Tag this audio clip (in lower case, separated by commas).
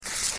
tearing